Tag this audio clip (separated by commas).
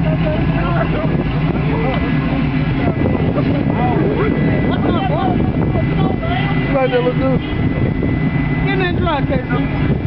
Speech